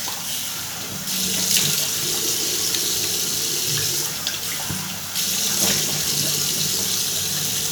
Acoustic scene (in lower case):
restroom